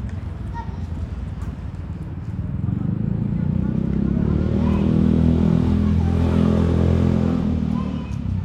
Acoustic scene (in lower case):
residential area